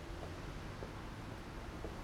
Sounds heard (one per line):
car
car engine accelerating